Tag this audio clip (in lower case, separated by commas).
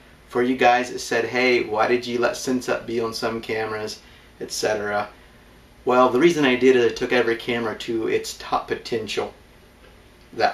speech